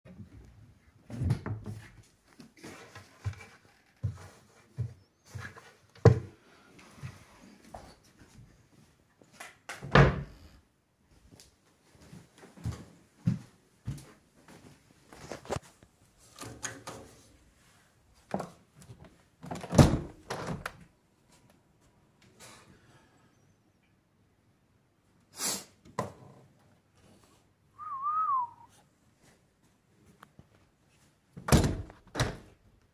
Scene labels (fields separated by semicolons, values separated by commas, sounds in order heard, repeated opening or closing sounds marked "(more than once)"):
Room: bedroom; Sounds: wardrobe or drawer, footsteps, window